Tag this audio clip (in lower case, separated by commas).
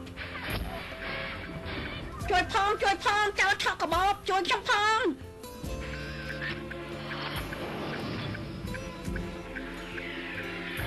speech, music